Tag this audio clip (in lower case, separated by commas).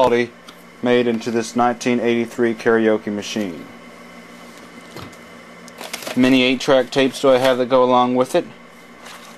speech